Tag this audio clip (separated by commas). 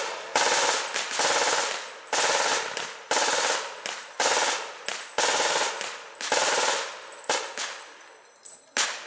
machine gun shooting